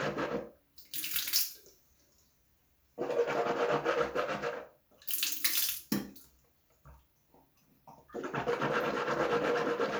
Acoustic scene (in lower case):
restroom